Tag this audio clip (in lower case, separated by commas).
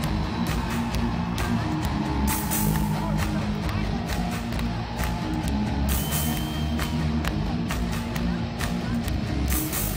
music